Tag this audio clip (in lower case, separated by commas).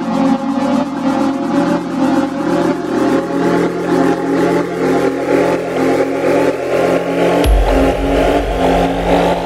music